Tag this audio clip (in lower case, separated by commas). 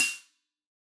hi-hat, music, musical instrument, percussion, cymbal